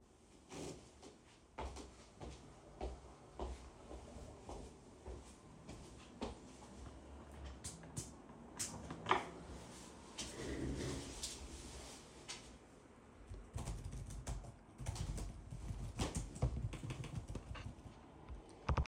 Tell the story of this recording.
I walked the the light switch,turned it on,moved the chair near me,started writting on my keyboard and clicked the mouse.